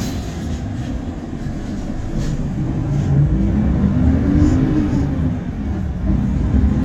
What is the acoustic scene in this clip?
bus